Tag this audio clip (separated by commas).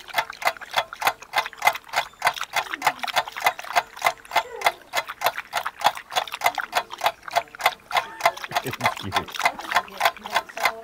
Speech